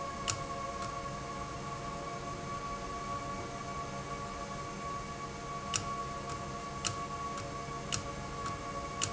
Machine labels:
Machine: valve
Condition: abnormal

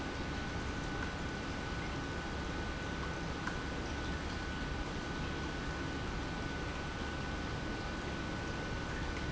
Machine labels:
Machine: pump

